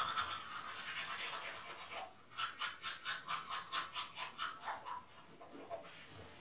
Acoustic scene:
restroom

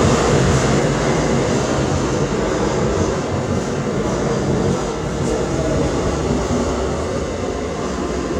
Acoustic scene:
subway station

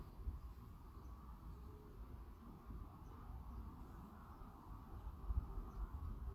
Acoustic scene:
residential area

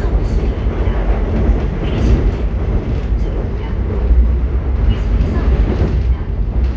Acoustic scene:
subway train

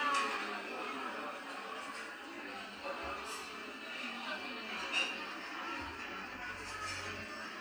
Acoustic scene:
restaurant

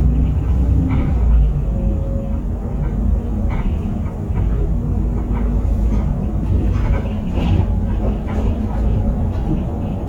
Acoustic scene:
bus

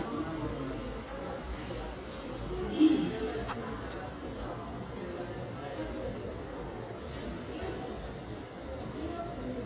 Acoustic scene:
subway station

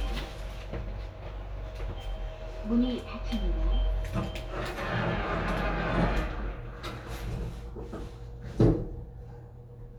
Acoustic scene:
elevator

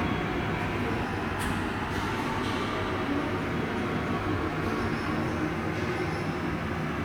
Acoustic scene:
subway station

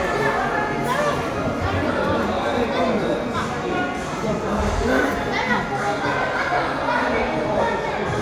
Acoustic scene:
crowded indoor space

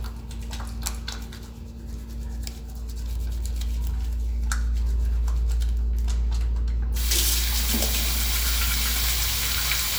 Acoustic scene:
restroom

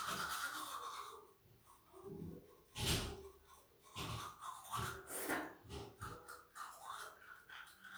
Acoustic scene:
restroom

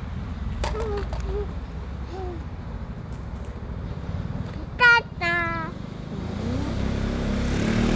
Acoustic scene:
street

